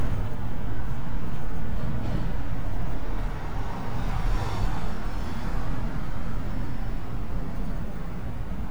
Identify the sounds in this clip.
engine of unclear size